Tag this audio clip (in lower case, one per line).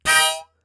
music
musical instrument
harmonica